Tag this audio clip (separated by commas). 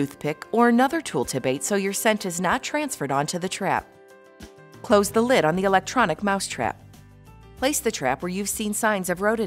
Speech, Music